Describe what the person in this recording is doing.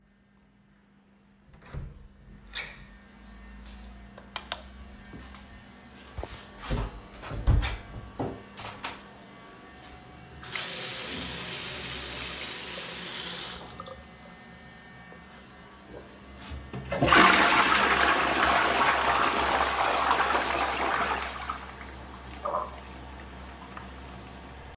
I opened the toilet door and stepped inside carrying my phone. I turned on the tap to wash my hands for a few seconds, letting the water run clearly. Then I flushed the toilet once with a strong flush sound.